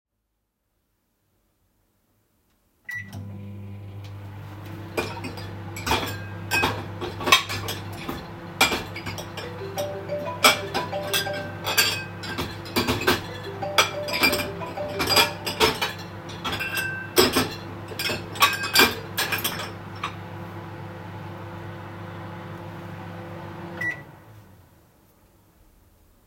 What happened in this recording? I started the microwave and handled cutlery and dishes nearby. While both sounds were active, a phone started ringing and all three target events overlapped clearly.